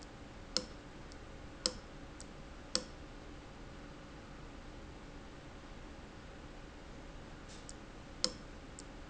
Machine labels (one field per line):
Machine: valve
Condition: abnormal